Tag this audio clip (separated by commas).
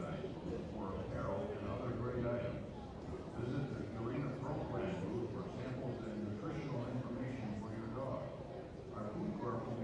Speech